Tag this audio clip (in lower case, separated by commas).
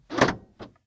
vehicle, motor vehicle (road), car